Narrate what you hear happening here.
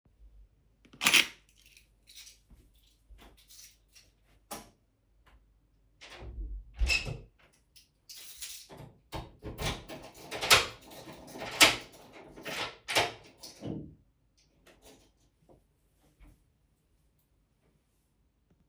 I took the keys then turned the lights off then closed the doors and locked it